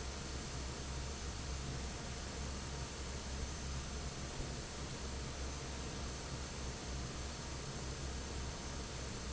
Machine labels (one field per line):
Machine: fan